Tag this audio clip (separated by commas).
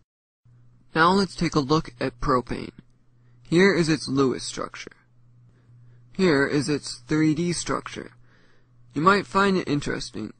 Speech, Narration